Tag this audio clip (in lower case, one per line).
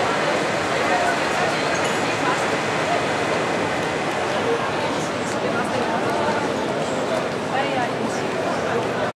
speech